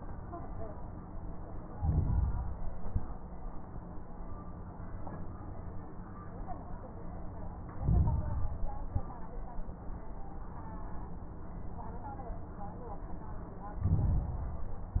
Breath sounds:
Inhalation: 1.69-2.73 s, 7.71-8.76 s, 13.78-14.82 s
Exhalation: 2.77-3.19 s, 8.80-9.21 s
Crackles: 1.69-2.73 s, 2.77-3.19 s, 7.71-8.76 s, 8.80-9.21 s, 13.78-14.82 s

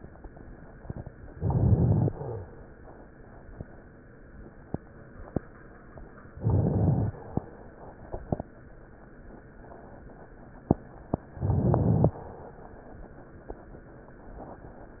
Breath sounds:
Inhalation: 1.27-2.15 s, 6.36-7.23 s, 11.38-12.26 s
Crackles: 1.27-2.15 s, 6.36-7.23 s, 11.38-12.26 s

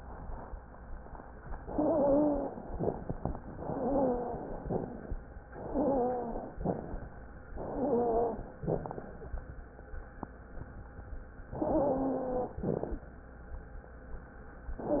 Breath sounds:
Inhalation: 1.71-2.70 s, 3.62-4.61 s, 5.58-6.57 s, 7.63-8.62 s, 11.61-12.60 s
Exhalation: 4.67-5.14 s, 6.57-7.04 s, 8.62-9.09 s, 12.60-13.07 s
Wheeze: 1.71-2.70 s, 3.62-4.61 s, 5.58-6.57 s, 7.63-8.62 s, 11.61-12.60 s

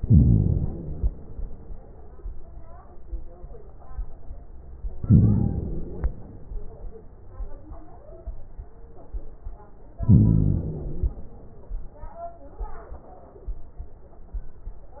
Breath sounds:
Inhalation: 0.00-1.08 s, 5.02-6.10 s, 10.02-11.10 s

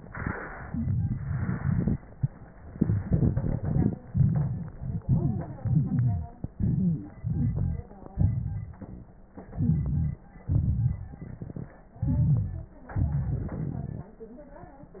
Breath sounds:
Inhalation: 2.67-4.03 s, 4.76-5.06 s, 5.62-6.50 s, 7.19-8.04 s, 9.49-10.41 s, 11.96-12.89 s
Exhalation: 4.03-4.76 s, 5.08-5.59 s, 6.48-7.21 s, 8.06-9.34 s, 10.42-11.89 s, 12.89-14.18 s
Wheeze: 5.62-6.50 s, 6.57-7.04 s, 7.22-7.87 s, 9.55-10.22 s, 12.00-12.76 s
Crackles: 0.00-2.00 s, 2.67-4.03 s, 4.03-4.76 s, 5.08-5.59 s, 8.06-9.34 s, 10.42-11.89 s, 12.89-14.18 s

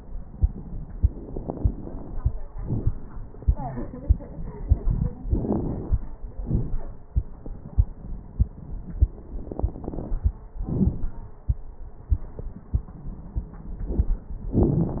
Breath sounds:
Inhalation: 0.91-2.30 s, 5.27-6.01 s, 9.37-10.41 s
Exhalation: 2.49-2.98 s, 6.35-7.07 s, 10.65-11.41 s
Crackles: 0.91-2.30 s, 2.49-2.98 s, 5.27-6.01 s, 6.35-7.07 s, 9.37-10.41 s, 10.65-11.41 s

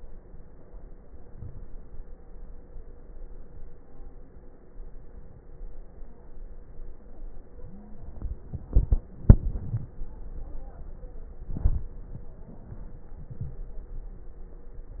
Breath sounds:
Inhalation: 1.26-1.74 s, 11.42-11.96 s
Stridor: 7.47-8.14 s

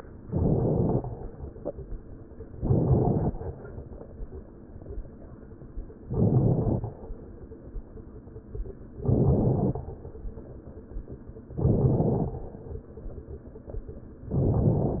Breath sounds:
Inhalation: 0.21-1.01 s, 2.54-3.34 s, 6.05-6.85 s, 9.01-9.81 s, 11.61-12.41 s, 14.31-15.00 s
Crackles: 0.21-1.01 s, 2.54-3.34 s, 6.05-6.85 s, 9.01-9.81 s, 11.61-12.41 s, 14.31-15.00 s

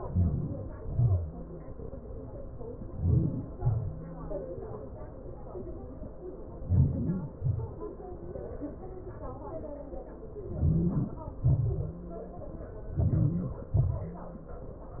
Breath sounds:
Inhalation: 0.00-0.63 s, 2.69-3.40 s, 6.30-7.08 s, 10.30-10.95 s, 12.62-13.36 s
Exhalation: 0.66-1.12 s, 3.38-3.95 s, 7.15-7.80 s, 10.95-11.56 s, 13.43-14.10 s

